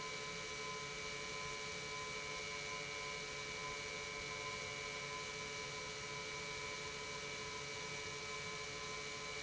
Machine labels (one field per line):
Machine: pump